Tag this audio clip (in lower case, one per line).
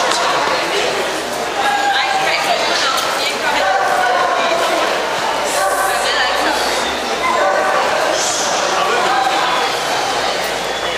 speech
animal
domestic animals
dog